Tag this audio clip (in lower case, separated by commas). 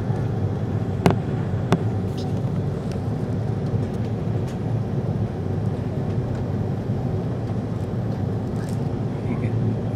aircraft, vehicle